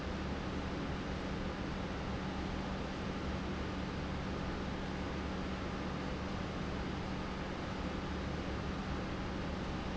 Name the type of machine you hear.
pump